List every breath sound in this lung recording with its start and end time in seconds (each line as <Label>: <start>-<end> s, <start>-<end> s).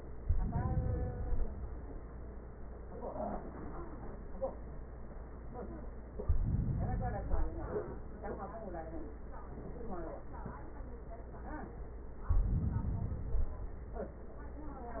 Inhalation: 0.10-1.60 s, 6.22-7.72 s, 12.29-13.79 s